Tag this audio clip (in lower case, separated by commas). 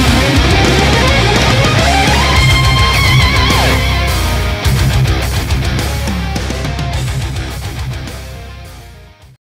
music